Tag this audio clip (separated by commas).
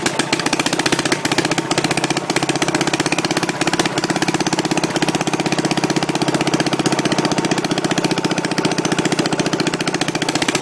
Medium engine (mid frequency), Idling, Engine